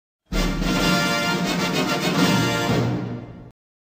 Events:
0.2s-3.5s: music

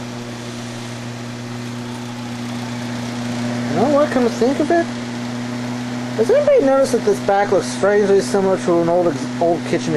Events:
0.0s-9.9s: mechanical fan
3.7s-4.8s: male speech
6.1s-9.9s: male speech

